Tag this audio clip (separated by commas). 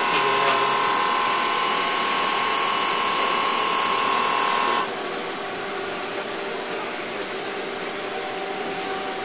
Power tool